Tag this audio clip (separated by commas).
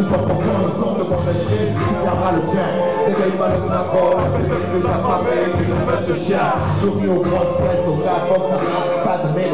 Music